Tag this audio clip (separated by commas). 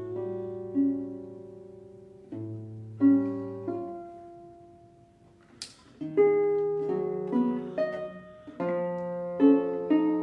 Music, Classical music